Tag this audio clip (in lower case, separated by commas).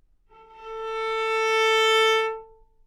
musical instrument, bowed string instrument, music